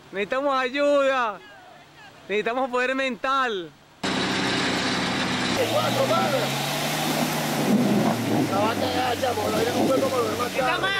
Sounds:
Car, Vehicle, Speech

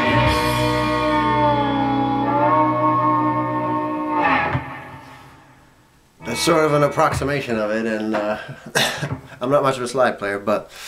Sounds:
Music, Musical instrument, Guitar, Speech, Plucked string instrument, inside a small room

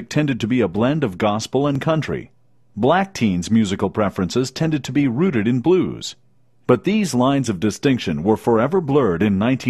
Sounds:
Speech

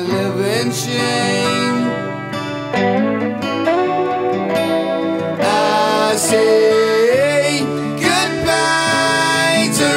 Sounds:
Music, Musical instrument, Guitar

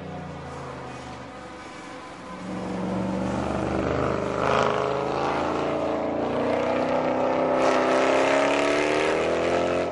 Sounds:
Motor vehicle (road), Vehicle, Car

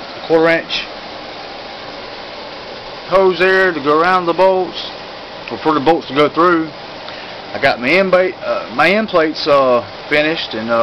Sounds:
Speech

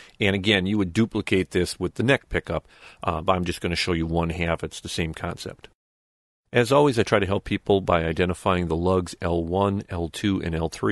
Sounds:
Speech

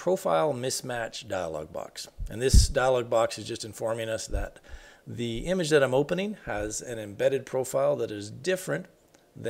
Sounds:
Speech

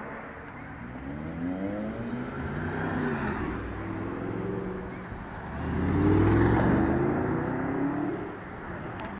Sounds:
Clatter

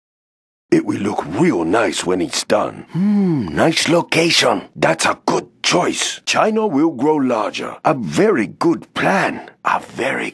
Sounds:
Speech

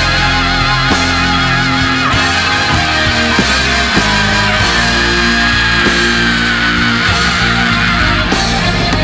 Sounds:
Music, Guitar

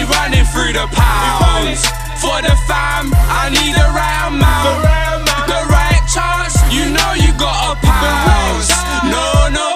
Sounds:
Pop music, Music

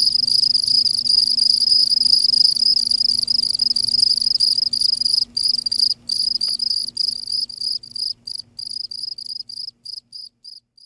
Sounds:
Animal

